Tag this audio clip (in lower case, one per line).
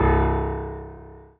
keyboard (musical)
piano
musical instrument
music